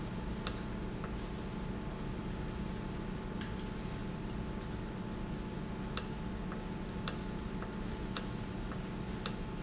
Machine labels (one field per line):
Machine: valve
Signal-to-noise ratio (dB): -6 dB